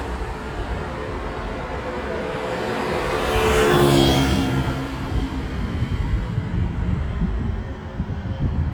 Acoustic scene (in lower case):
street